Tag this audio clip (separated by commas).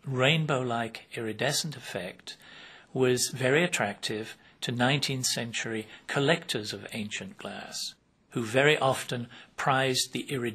Speech